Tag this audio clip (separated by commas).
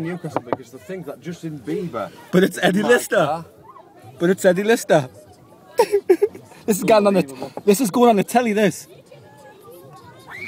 Speech